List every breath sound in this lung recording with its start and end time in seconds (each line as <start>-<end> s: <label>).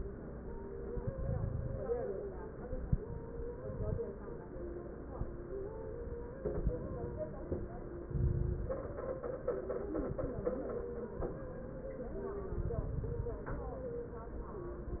0.99-1.88 s: inhalation
0.99-1.88 s: crackles
8.11-9.01 s: inhalation
8.11-9.01 s: crackles
12.54-13.43 s: inhalation
12.54-13.43 s: crackles